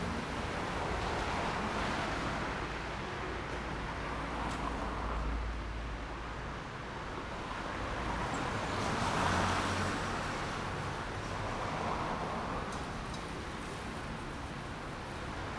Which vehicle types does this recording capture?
car, motorcycle